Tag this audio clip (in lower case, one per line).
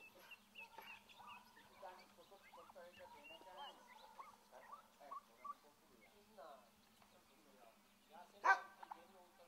animal
bird
speech